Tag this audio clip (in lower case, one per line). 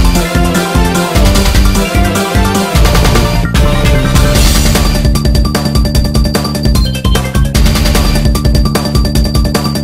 music
video game music